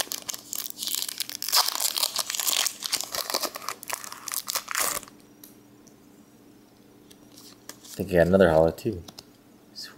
Crinkling plastic followed by a man speaking